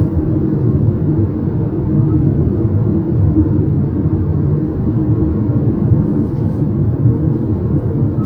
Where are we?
in a car